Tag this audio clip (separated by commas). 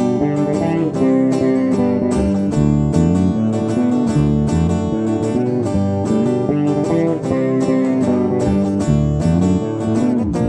Music, Guitar, Plucked string instrument, Bass guitar, Strum, Musical instrument